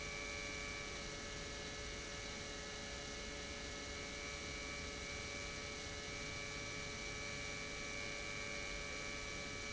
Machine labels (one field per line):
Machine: pump